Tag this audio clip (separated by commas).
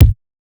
Musical instrument, Percussion, Music, Drum, Bass drum